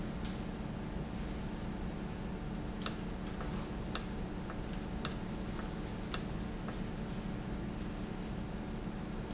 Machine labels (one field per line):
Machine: valve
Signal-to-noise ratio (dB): -6 dB